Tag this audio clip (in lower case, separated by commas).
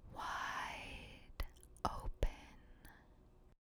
whispering, human voice